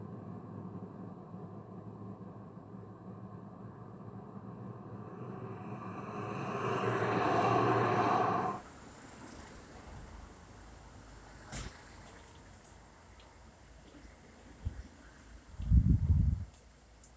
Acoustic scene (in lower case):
street